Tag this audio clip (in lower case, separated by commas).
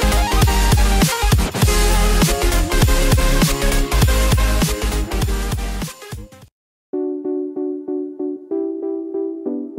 music, synthesizer